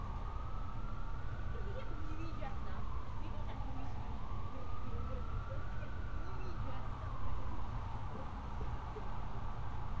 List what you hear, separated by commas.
siren, person or small group talking